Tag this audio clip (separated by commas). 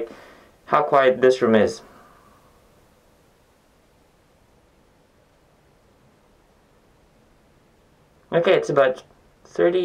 Speech